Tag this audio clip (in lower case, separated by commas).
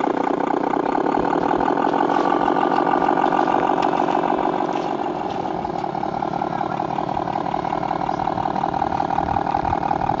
vroom, speech, vehicle